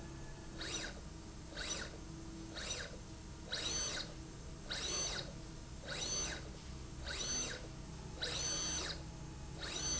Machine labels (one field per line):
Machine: slide rail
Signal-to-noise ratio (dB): 6 dB